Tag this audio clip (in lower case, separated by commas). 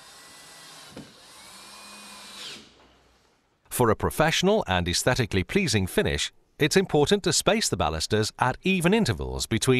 speech